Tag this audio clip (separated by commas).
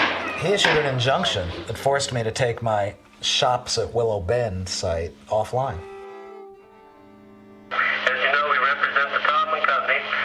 Speech, Radio, Music